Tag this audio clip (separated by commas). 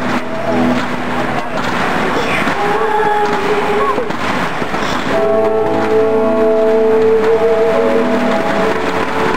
Music, Firecracker